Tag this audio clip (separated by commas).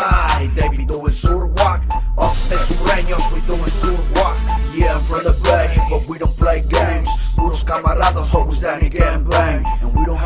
Music